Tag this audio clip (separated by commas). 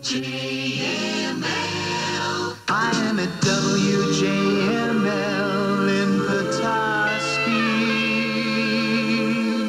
Music